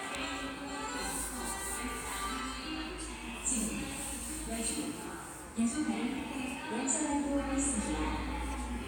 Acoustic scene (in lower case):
subway station